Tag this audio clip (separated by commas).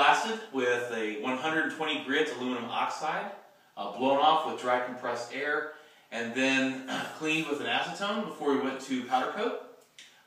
Speech